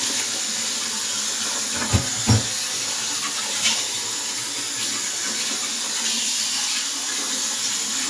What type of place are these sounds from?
kitchen